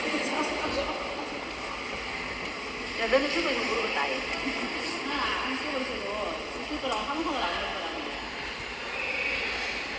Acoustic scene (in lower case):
subway station